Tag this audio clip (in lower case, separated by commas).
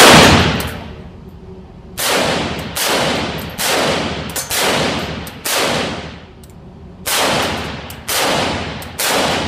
echo